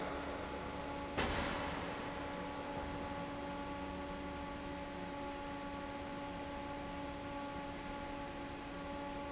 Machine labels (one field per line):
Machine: fan